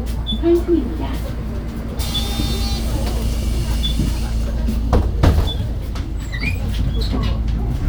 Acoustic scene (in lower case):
bus